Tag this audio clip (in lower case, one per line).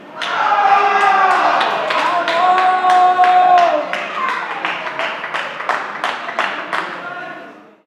clapping
human group actions
cheering
hands
applause